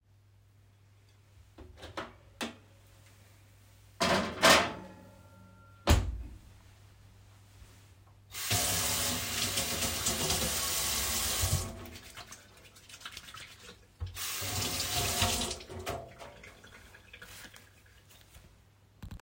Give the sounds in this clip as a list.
microwave, cutlery and dishes, running water